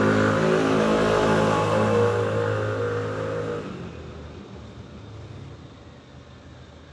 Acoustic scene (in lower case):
residential area